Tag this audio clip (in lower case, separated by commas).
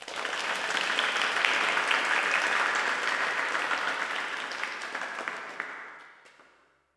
crowd, human group actions, applause